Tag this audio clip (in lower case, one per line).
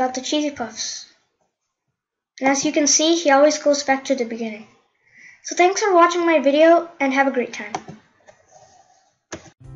clicking